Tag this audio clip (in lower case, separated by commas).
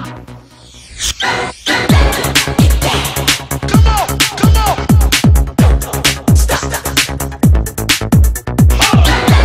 music